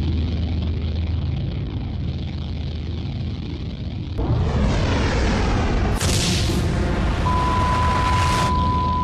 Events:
0.0s-9.0s: sound effect
4.1s-8.5s: explosion
7.3s-9.0s: sine wave

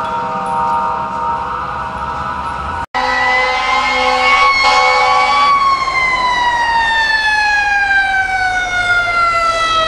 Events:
0.0s-2.8s: fire truck (siren)
0.0s-2.8s: wind
2.9s-4.5s: truck horn
2.9s-9.8s: fire truck (siren)
2.9s-9.8s: wind
4.6s-5.5s: truck horn

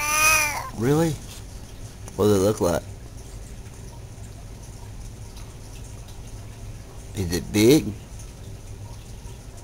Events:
0.0s-0.7s: cat
0.0s-9.6s: background noise
0.0s-9.6s: rain on surface
0.7s-1.2s: man speaking
2.1s-2.8s: man speaking
7.1s-7.8s: man speaking

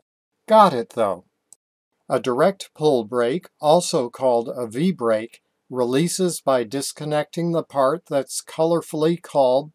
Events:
0.3s-1.5s: background noise
0.5s-1.2s: man speaking
0.9s-0.9s: tick
1.5s-1.5s: tick
1.9s-9.7s: background noise
2.0s-3.5s: man speaking
3.6s-5.4s: man speaking
5.3s-5.3s: tick
5.7s-9.7s: man speaking

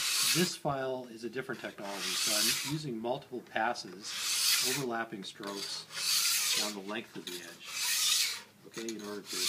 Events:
0.0s-9.4s: mechanisms
8.6s-9.4s: man speaking

